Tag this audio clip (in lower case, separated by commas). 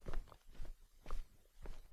footsteps